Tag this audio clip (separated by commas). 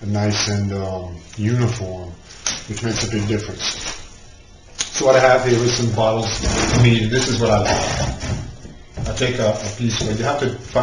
inside a small room, Speech